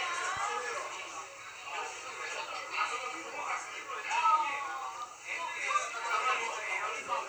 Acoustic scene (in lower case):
restaurant